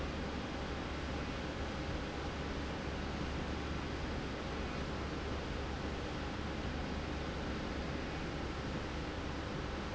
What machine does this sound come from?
slide rail